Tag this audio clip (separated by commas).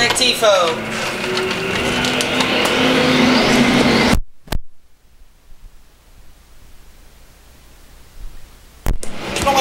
Speech